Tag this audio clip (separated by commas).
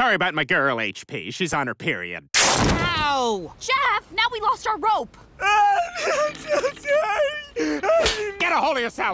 people slapping